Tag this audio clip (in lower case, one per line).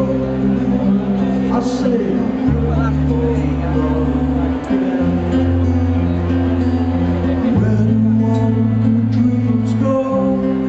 music
speech